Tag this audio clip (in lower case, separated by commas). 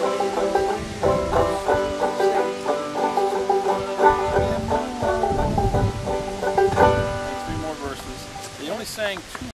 music, speech